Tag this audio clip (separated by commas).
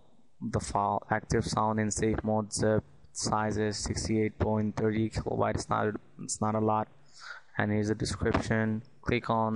Speech